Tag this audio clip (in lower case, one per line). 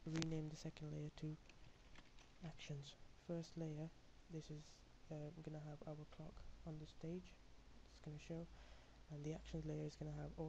speech